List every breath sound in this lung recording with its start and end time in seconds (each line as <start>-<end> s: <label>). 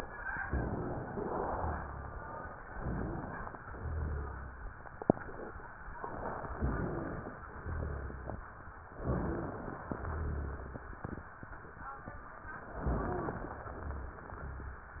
0.44-1.27 s: inhalation
0.44-1.27 s: rhonchi
1.52-2.35 s: exhalation
1.52-2.35 s: rhonchi
2.75-3.59 s: inhalation
3.76-4.59 s: exhalation
3.76-4.59 s: crackles
6.47-7.31 s: rhonchi
6.49-7.33 s: inhalation
7.55-8.39 s: exhalation
7.55-8.39 s: rhonchi
9.03-9.87 s: inhalation
9.03-9.87 s: rhonchi
10.02-10.85 s: exhalation
10.02-10.85 s: rhonchi
12.79-13.62 s: inhalation
12.79-13.62 s: rhonchi
13.72-14.30 s: exhalation
13.72-14.30 s: rhonchi